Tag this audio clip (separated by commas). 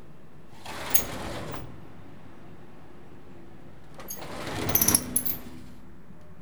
Sliding door, Domestic sounds, Door